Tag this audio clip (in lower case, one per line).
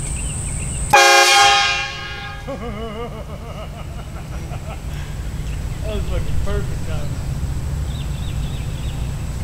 train horning